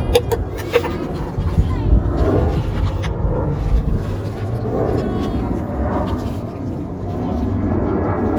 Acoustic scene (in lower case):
residential area